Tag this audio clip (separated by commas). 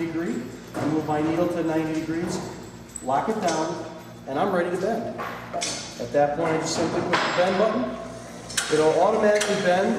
Speech, inside a large room or hall